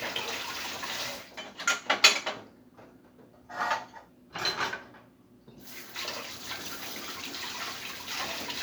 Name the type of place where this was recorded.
kitchen